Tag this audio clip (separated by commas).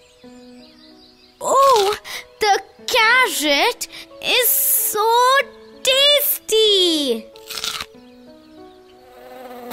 Speech, Music